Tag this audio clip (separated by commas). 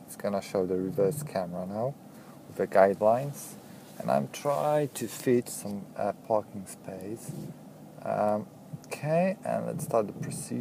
Speech